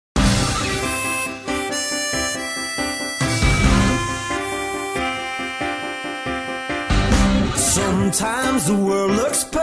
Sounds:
music, theme music

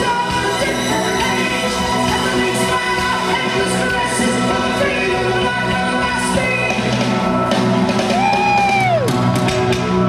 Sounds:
singing, music, inside a large room or hall

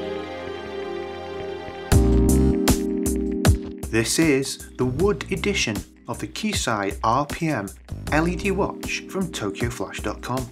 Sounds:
music, speech

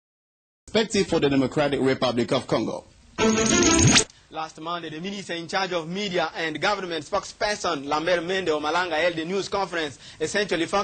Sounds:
music, speech

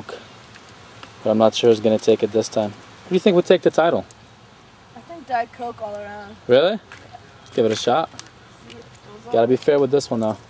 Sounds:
speech

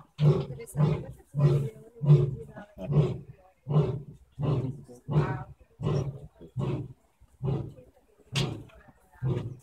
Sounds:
lions roaring

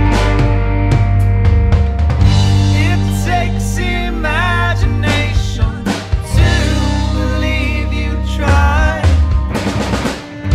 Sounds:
drum, drum kit, snare drum, percussion, bass drum, rimshot

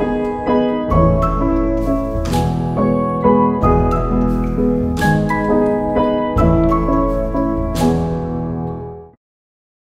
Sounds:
music

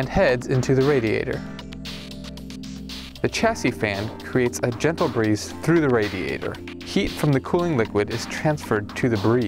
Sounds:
speech, music

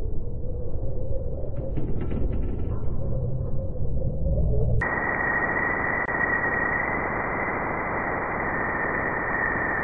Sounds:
sound effect

